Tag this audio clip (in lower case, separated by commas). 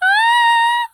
female singing, human voice, singing